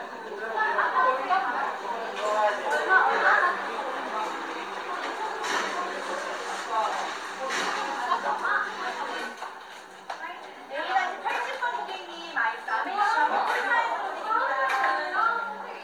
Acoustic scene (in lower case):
cafe